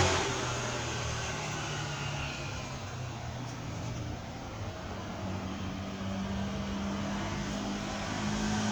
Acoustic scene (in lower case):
street